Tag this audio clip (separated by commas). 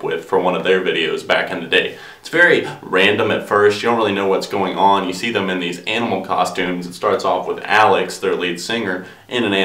Speech